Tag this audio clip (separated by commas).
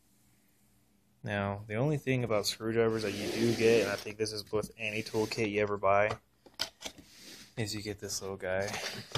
Speech, Tools